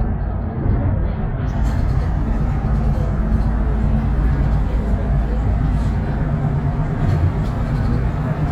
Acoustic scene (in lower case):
bus